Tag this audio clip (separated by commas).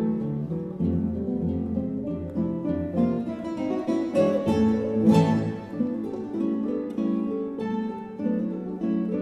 Music, Guitar, Plucked string instrument, Acoustic guitar, playing acoustic guitar, Strum, Musical instrument